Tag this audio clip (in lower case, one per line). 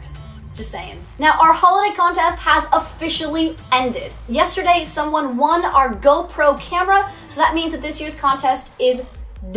speech
music